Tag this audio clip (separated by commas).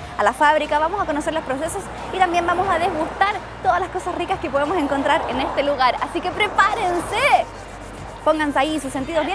Speech, Music